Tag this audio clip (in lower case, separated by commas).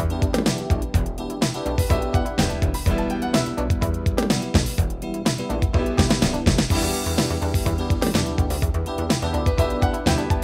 music, electronica